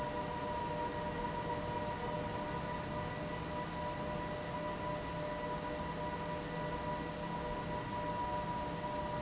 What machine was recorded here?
fan